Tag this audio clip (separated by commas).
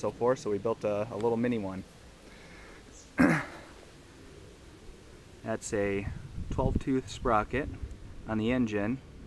Speech